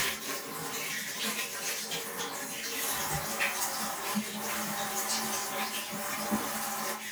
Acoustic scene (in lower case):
restroom